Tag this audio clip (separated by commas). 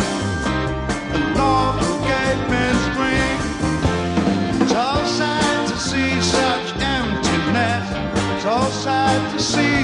Music